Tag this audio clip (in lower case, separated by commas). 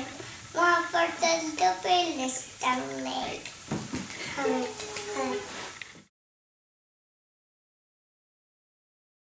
child singing